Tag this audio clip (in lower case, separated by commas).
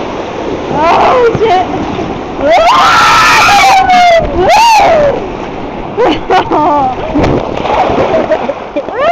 gurgling